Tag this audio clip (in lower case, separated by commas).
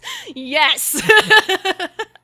laughter, human voice